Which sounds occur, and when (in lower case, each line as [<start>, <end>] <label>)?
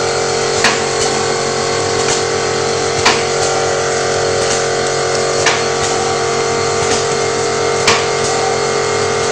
[0.00, 9.31] mechanisms
[0.67, 0.84] generic impact sounds
[1.05, 1.10] tick
[2.06, 2.29] generic impact sounds
[3.02, 3.29] generic impact sounds
[3.45, 3.51] tick
[4.53, 4.61] tick
[5.18, 5.26] tick
[5.49, 5.71] generic impact sounds
[5.86, 5.94] tick
[6.95, 7.01] tick
[7.90, 8.10] generic impact sounds
[8.28, 8.37] tick